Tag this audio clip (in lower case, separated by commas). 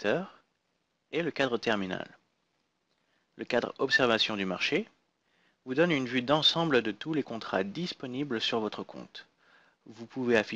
speech